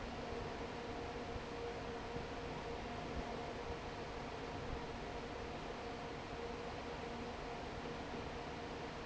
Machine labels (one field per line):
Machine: fan